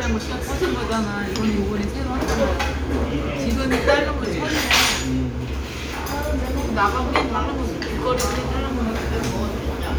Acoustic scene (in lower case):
restaurant